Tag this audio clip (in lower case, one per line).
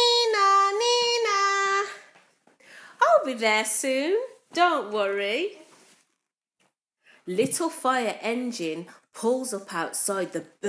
speech